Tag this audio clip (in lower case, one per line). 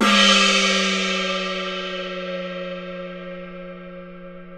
music
percussion
musical instrument
gong